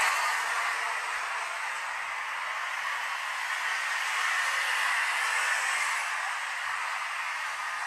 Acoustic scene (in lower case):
street